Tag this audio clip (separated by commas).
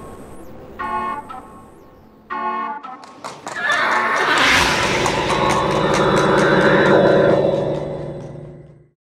Musical instrument, Music